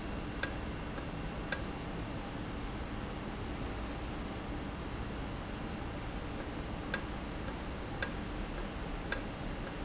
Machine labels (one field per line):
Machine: valve